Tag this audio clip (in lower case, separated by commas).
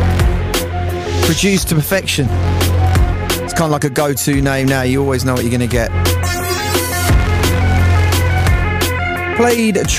music, speech